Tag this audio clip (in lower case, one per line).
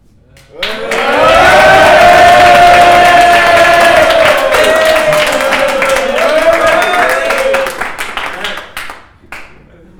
human group actions
shout
cheering
human voice